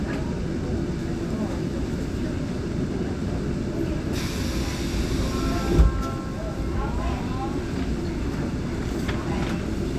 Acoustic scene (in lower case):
subway train